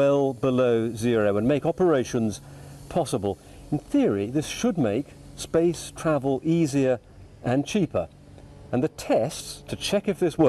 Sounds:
speech

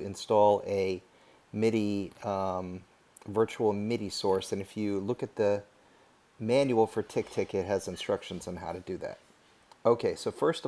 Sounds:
speech

